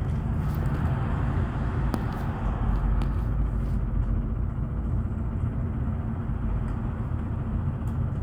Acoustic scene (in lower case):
bus